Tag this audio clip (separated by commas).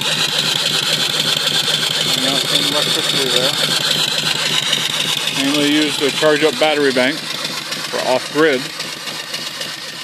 Engine, Speech